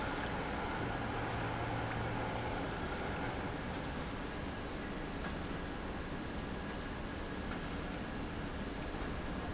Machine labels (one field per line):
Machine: pump